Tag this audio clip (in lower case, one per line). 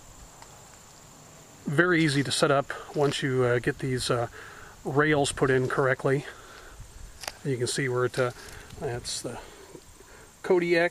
speech